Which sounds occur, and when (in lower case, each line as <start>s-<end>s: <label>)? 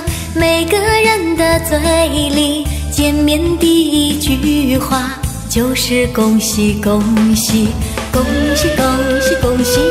0.0s-0.3s: breathing
0.0s-9.9s: music
0.3s-2.6s: female singing
2.6s-2.9s: breathing
2.9s-5.1s: female singing
5.4s-7.7s: female singing
7.7s-8.1s: breathing
8.1s-9.9s: female singing